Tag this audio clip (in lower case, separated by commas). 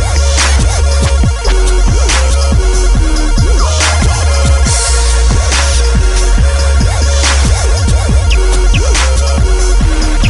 music, dubstep